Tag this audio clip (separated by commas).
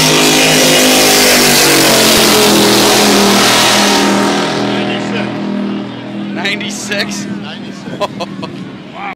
Motorboat, Water vehicle, Speech, Vehicle